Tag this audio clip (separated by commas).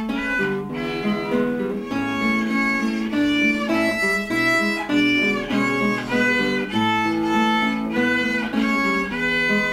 Violin, Music, Musical instrument